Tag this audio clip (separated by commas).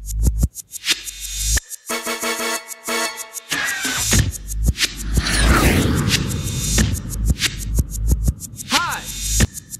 Music